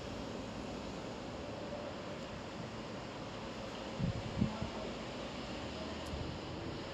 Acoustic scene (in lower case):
street